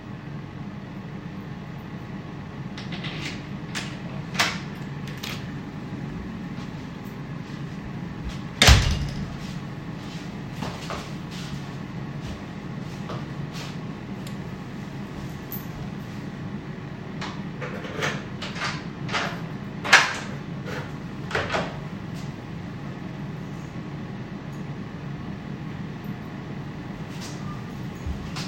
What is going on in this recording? I entered the hallway through the entrance door, and then opened the door to my room with my keys. Meanwhile, the aerogrill was working in the kitchen